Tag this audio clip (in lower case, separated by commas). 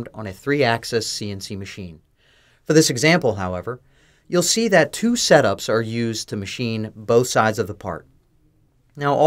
speech